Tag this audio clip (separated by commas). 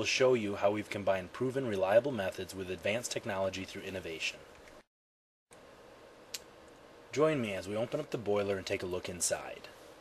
Speech